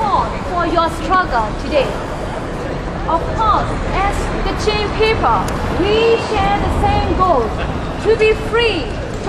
An adult female is speaking